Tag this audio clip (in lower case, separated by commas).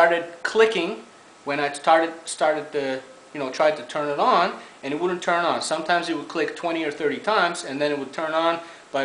speech